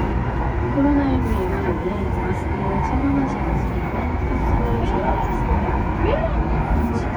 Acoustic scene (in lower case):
subway train